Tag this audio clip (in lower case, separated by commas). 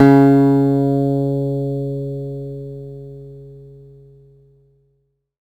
music, musical instrument, acoustic guitar, guitar, plucked string instrument